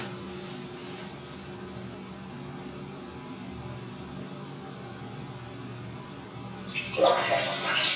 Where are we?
in a restroom